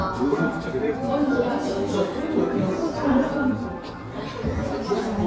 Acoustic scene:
crowded indoor space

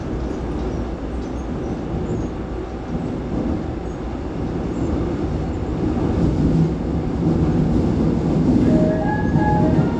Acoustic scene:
subway train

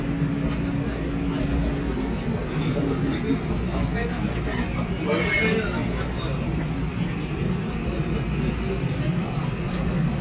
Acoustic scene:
subway station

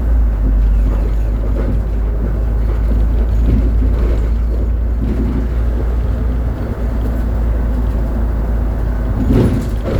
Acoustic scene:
bus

